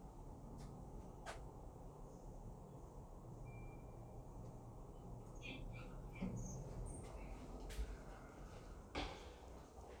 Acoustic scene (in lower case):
elevator